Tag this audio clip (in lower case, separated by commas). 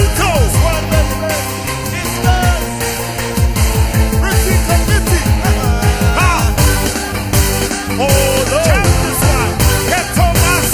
music